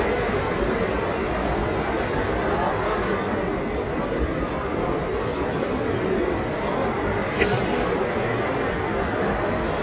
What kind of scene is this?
crowded indoor space